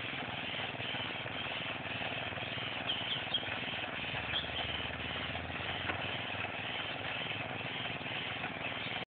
Birds chirping while machinery runs